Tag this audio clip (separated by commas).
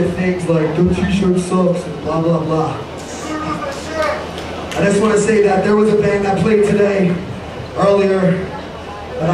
Speech